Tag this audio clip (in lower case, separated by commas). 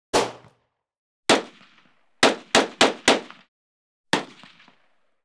explosion, gunfire